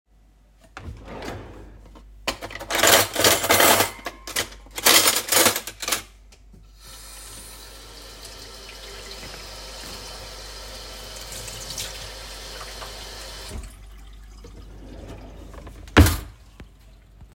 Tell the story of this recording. I opened and closed a kitchen drawer then I handled some cutlery and dishes near the sink while the water was running.